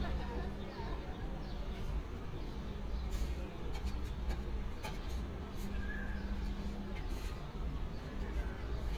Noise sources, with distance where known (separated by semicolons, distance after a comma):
large crowd, near